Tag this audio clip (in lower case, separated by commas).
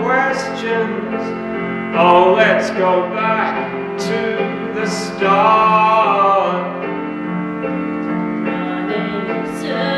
music, male singing, female singing